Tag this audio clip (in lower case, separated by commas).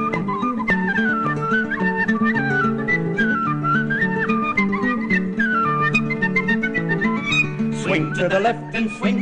flute